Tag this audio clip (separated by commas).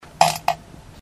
Fart